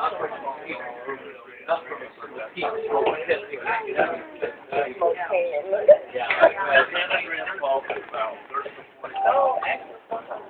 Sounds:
speech

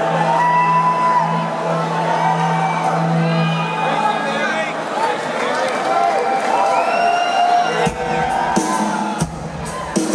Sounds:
speech, music

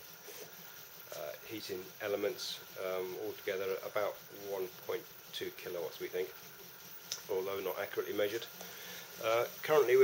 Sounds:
speech

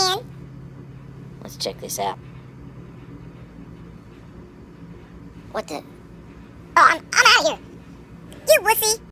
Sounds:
speech

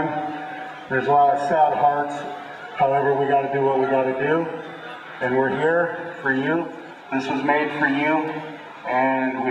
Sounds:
speech, male speech, monologue

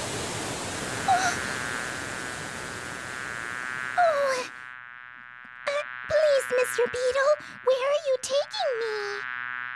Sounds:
frog croaking

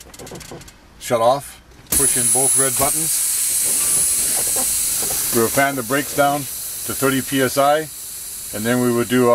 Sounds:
speech

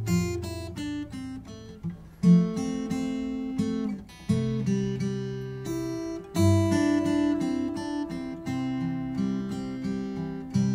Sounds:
strum, music, musical instrument, guitar, acoustic guitar, plucked string instrument

